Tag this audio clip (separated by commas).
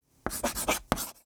home sounds, Writing